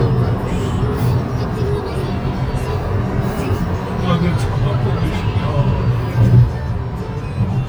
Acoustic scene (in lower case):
car